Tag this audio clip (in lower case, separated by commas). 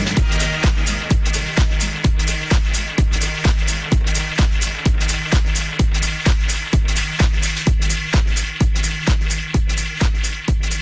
house music